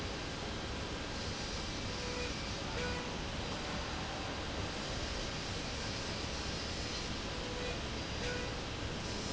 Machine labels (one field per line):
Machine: slide rail